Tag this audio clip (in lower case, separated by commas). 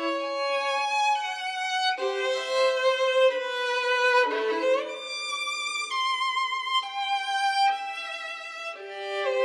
fiddle, musical instrument, music